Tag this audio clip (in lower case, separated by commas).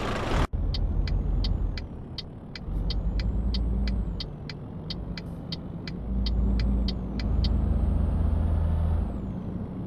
vehicle, car